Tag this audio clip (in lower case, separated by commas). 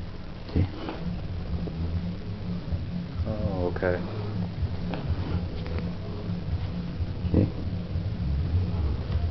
speech